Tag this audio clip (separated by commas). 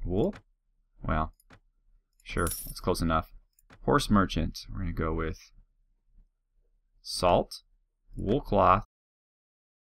Speech